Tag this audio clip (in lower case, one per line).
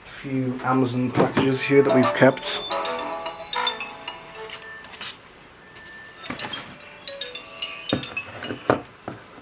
speech